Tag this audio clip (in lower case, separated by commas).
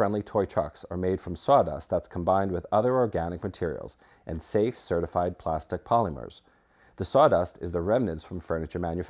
speech